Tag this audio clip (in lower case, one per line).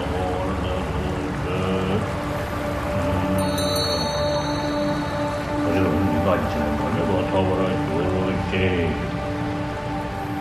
mantra
music